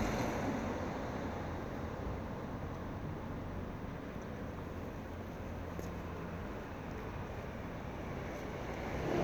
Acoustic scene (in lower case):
street